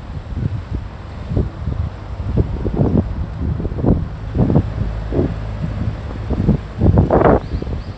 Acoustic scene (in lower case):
street